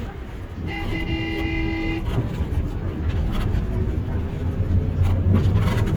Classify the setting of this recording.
bus